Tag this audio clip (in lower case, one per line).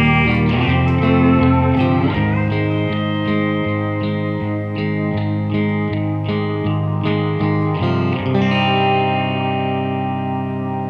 distortion
effects unit
electric guitar
music